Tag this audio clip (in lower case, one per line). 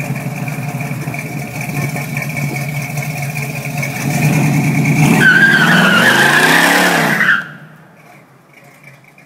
vehicle
car
engine
accelerating